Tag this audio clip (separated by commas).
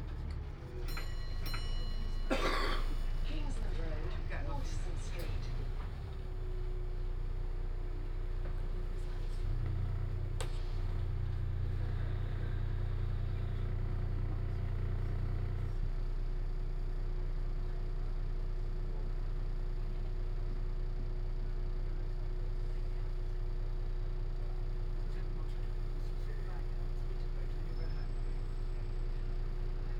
Vehicle, Bus, Motor vehicle (road)